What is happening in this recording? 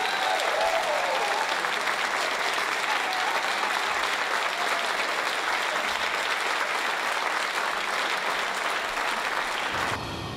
Cheering and applause